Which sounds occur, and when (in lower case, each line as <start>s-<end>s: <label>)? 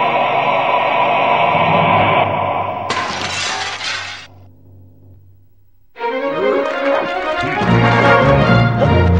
0.0s-2.8s: music
2.9s-4.2s: sound effect
4.3s-5.9s: mechanisms
5.9s-9.1s: music
6.2s-6.6s: human voice
7.3s-7.6s: human voice